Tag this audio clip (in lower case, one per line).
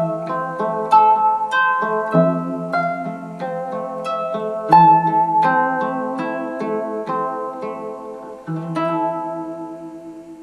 plucked string instrument
harp
bowed string instrument
zither
musical instrument
music